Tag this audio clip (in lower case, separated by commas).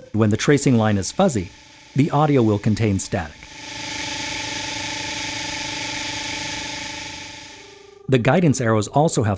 speech